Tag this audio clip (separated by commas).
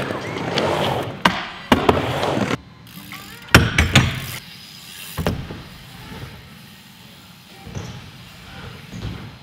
Bicycle, Vehicle